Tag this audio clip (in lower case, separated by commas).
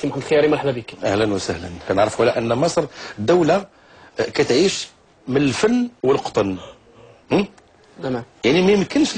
speech